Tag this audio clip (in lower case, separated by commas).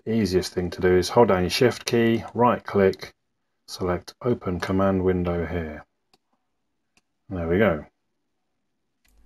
clicking, speech, inside a small room